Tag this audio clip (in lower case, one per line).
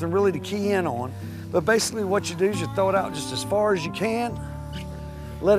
speech